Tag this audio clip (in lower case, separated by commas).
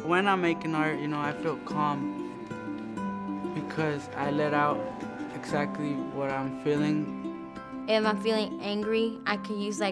music, speech